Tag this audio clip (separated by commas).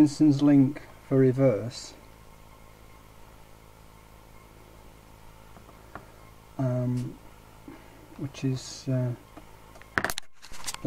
Speech